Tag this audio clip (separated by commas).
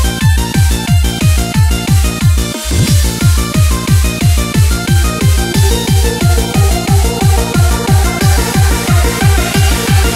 Music, Electronic music, Techno